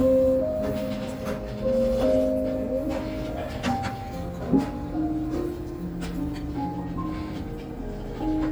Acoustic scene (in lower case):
restaurant